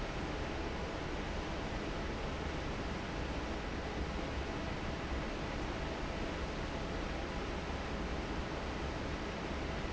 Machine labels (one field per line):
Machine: fan